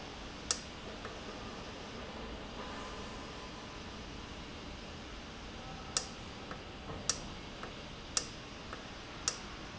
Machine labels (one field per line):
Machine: valve